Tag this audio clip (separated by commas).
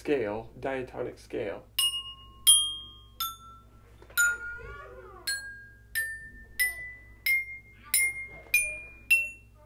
Wind chime, Chime